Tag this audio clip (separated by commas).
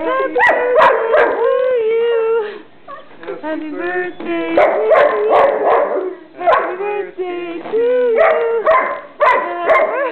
Animal, dog bow-wow, pets, Female singing, Dog, Bow-wow